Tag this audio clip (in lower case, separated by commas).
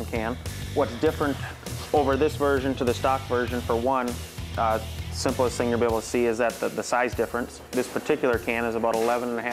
speech, music